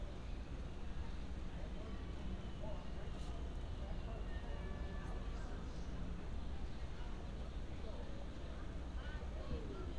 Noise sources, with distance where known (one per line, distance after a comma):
unidentified human voice